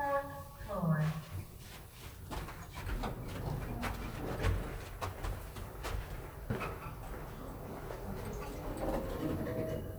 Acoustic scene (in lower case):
elevator